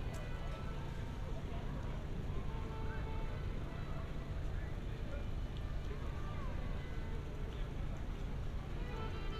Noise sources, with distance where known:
background noise

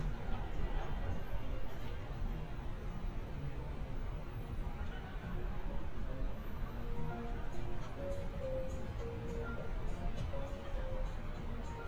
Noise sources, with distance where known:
music from an unclear source, near
person or small group talking

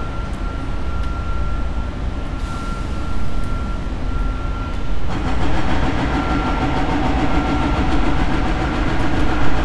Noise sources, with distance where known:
unidentified impact machinery, near

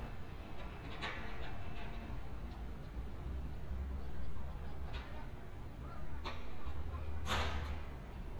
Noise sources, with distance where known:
background noise

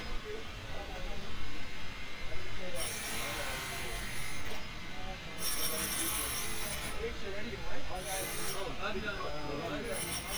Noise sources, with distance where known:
unidentified impact machinery, near

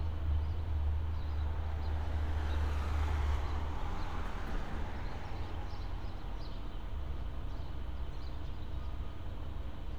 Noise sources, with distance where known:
engine of unclear size, far

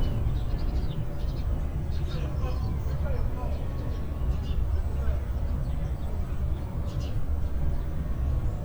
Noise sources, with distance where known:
person or small group shouting, far

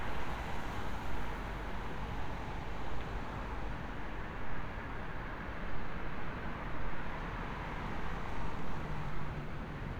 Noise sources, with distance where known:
medium-sounding engine, far

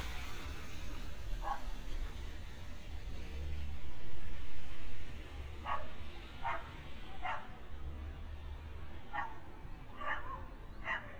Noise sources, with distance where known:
dog barking or whining, near

